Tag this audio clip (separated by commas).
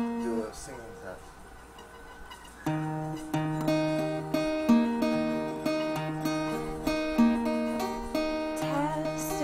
Sound effect, Speech, Music